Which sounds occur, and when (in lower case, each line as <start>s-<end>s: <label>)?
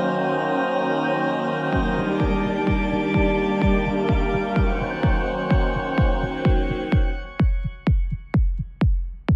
0.0s-9.3s: music